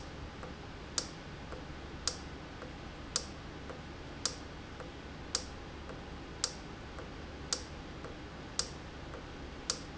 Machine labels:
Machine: valve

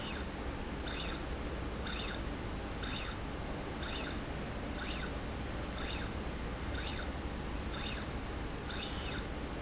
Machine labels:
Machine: slide rail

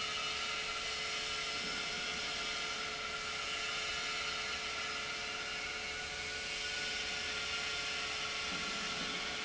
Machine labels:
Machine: pump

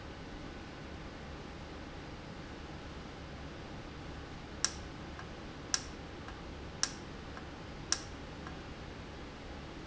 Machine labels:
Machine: valve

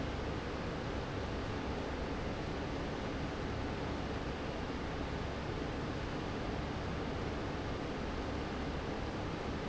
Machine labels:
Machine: fan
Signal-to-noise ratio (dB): -6 dB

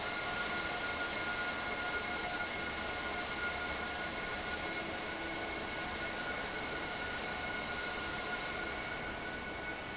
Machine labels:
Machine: fan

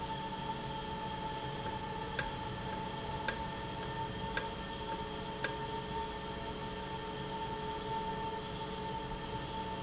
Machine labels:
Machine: valve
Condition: normal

